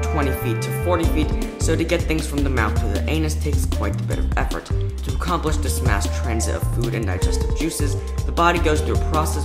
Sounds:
music
speech

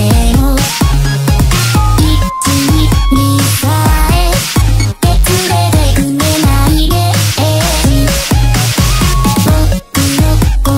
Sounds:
sampler
music

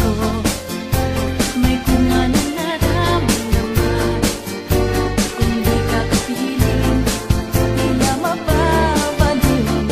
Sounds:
music

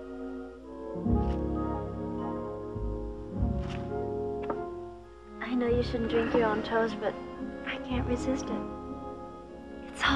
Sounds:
speech
music

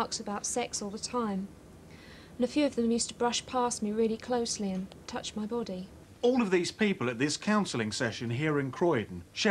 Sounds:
speech

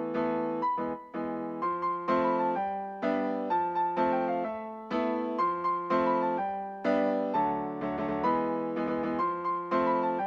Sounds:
music

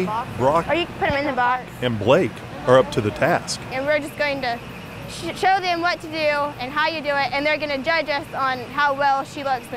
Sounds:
speech

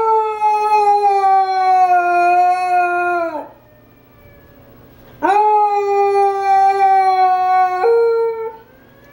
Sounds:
dog howling

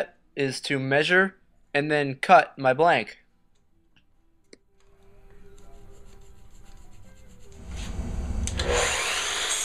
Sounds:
speech
tools
power tool

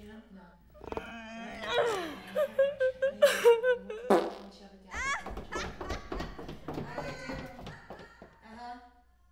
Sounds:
speech

